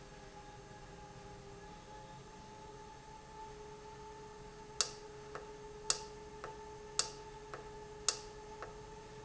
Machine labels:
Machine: valve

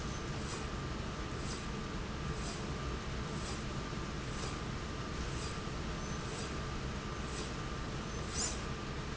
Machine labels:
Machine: slide rail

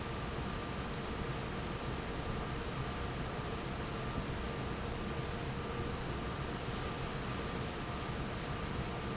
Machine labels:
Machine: fan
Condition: normal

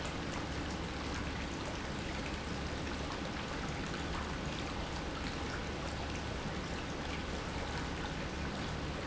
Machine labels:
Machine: pump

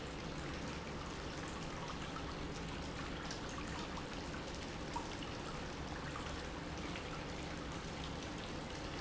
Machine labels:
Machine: pump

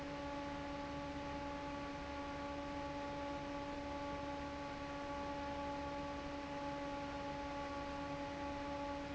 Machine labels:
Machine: fan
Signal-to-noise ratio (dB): 6 dB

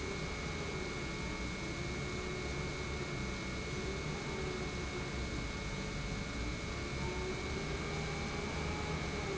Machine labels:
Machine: pump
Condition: normal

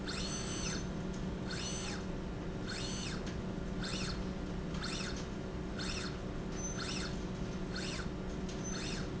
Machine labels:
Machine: slide rail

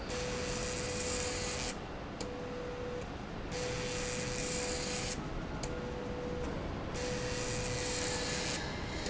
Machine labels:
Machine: slide rail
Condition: abnormal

